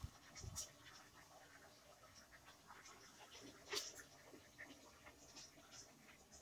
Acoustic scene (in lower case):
kitchen